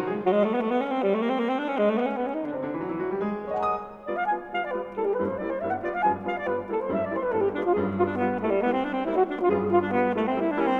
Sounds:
saxophone

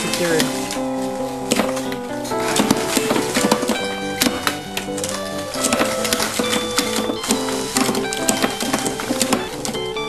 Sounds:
speech, music

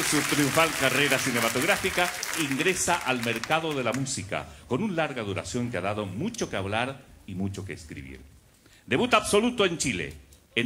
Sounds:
speech

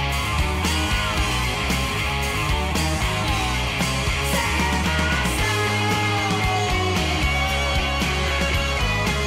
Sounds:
psychedelic rock, singing

